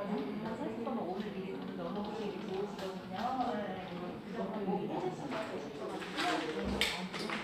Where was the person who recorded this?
in a crowded indoor space